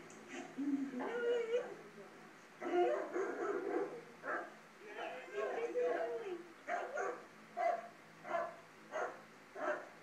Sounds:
Animal, Domestic animals, Dog, Bow-wow

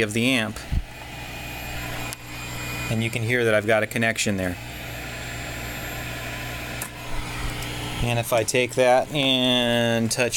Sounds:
Speech

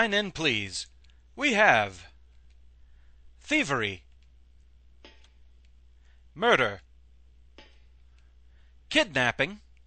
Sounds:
Speech

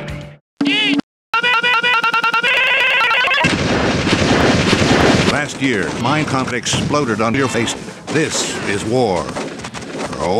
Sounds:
Speech, Gunshot

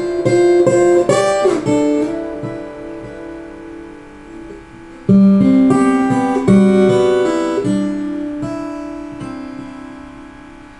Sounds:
Guitar, Plucked string instrument, Music, Strum, Musical instrument

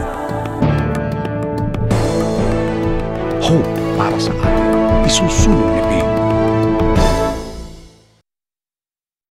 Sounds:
Speech, Music

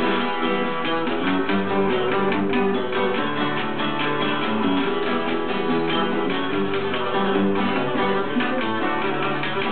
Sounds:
Music

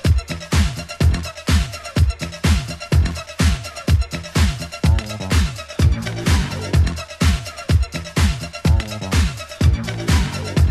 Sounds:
Music, Disco, Funk

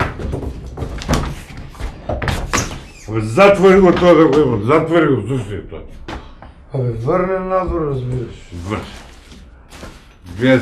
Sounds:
Speech, inside a small room

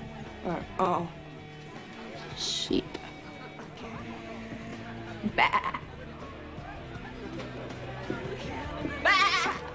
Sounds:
Music, Speech

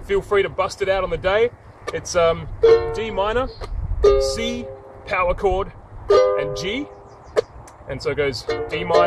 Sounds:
Speech, Music

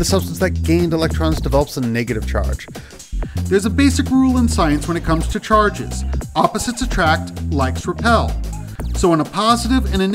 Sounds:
Music, Speech

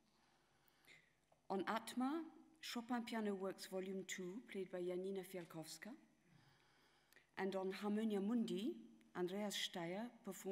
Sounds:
Speech

